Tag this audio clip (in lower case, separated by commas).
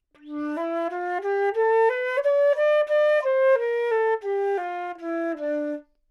musical instrument, music, woodwind instrument